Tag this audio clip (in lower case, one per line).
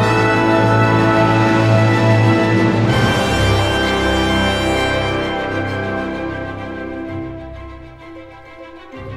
music